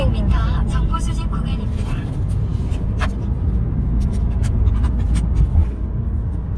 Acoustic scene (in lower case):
car